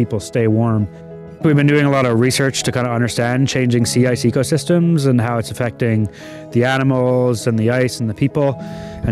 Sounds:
Music, Speech

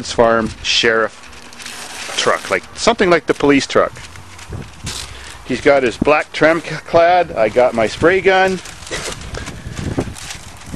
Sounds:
Speech

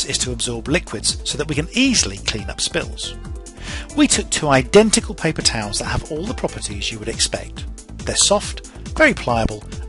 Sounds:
Speech, Music

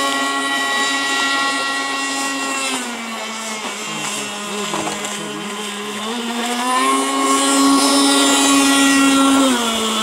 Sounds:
Speech

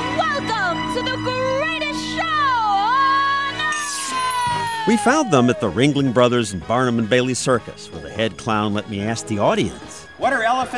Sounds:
Music, Speech

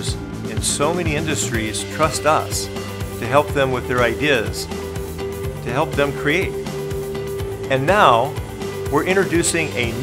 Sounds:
Speech, Music

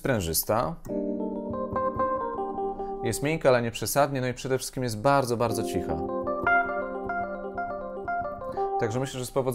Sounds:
Musical instrument, Synthesizer, Keyboard (musical), Piano, Electric piano, Speech, Music

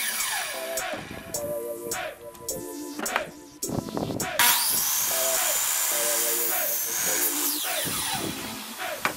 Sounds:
Wood, Sawing

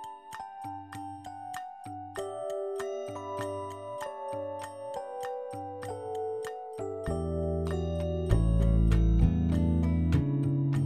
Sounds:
Glass

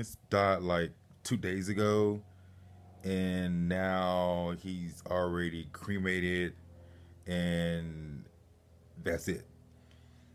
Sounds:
Speech

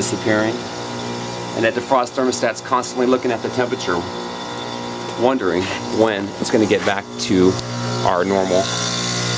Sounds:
Speech

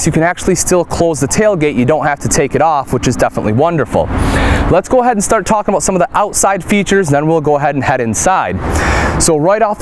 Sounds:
Speech

